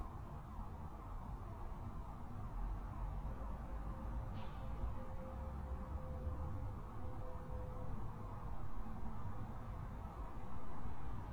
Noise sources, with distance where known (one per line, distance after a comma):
car alarm, far